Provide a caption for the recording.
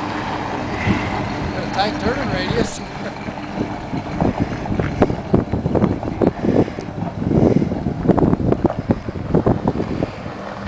An engine hums, wind blows and people speak